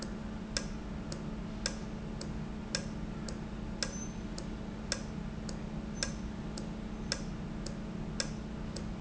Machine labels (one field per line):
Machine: valve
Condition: normal